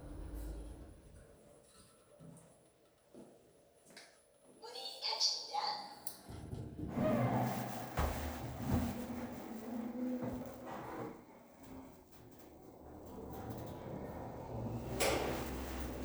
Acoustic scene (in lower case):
elevator